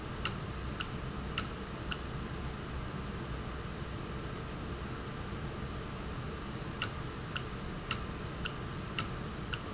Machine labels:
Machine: valve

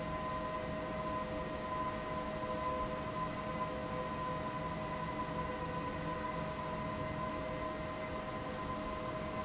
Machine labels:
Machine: fan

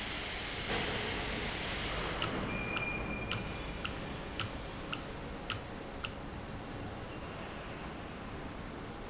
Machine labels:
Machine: valve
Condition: normal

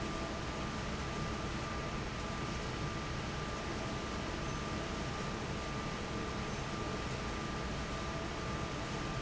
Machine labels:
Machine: fan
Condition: normal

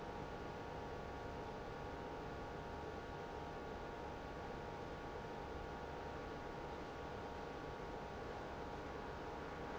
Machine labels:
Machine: pump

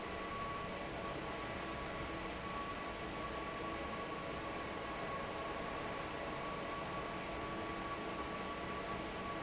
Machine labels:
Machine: fan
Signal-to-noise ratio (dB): 0 dB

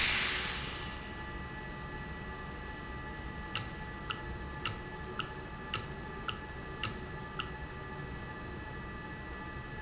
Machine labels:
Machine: valve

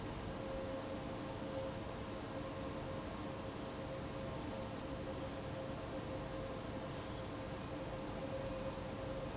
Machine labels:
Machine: fan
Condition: abnormal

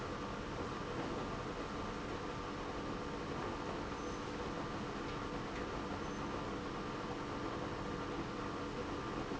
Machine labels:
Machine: pump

